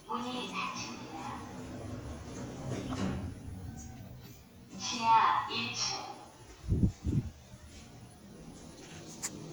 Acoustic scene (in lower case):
elevator